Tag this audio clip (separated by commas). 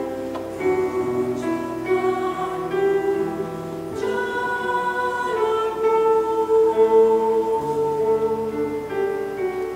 Choir, Music